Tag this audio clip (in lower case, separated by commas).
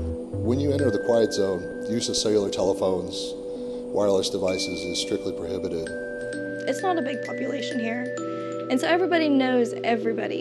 music, speech